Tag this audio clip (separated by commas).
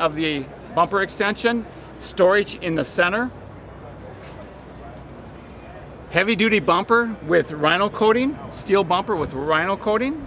Speech